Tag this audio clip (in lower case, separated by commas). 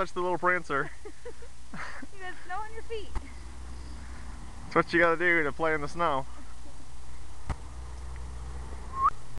speech